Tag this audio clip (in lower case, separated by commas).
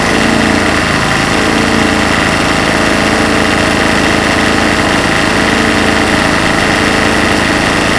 vehicle, engine